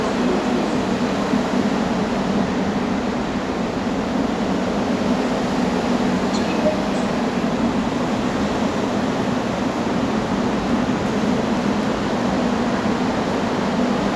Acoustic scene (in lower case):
subway station